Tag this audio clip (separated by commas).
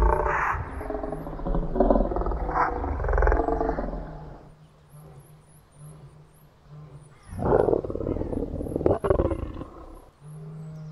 Wild animals, Animal, Roar